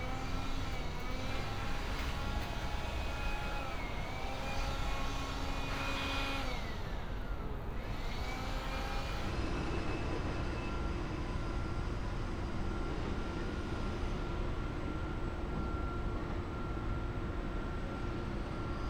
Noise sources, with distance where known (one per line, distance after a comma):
unidentified powered saw